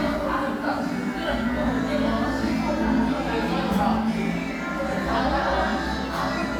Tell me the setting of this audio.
crowded indoor space